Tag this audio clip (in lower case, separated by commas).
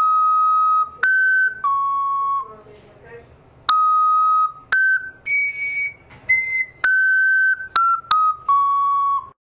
speech, music